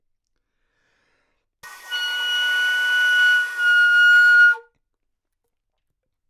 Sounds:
musical instrument, music, wind instrument

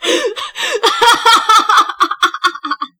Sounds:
human voice, laughter

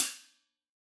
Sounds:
musical instrument, cymbal, music, hi-hat, percussion

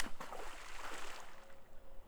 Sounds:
water, liquid, splatter

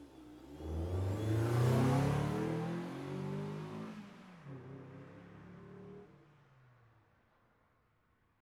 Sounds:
vroom, engine

